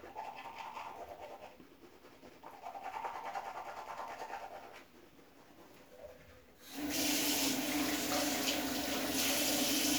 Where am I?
in a restroom